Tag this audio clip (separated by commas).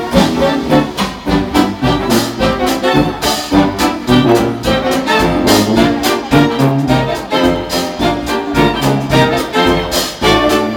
Orchestra, Musical instrument, Trombone, Brass instrument, Music